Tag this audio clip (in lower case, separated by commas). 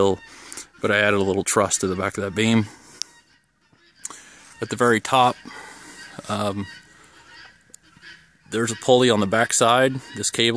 speech, outside, rural or natural, pig